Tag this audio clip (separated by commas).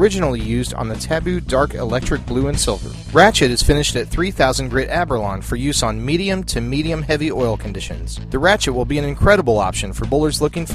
Music, Speech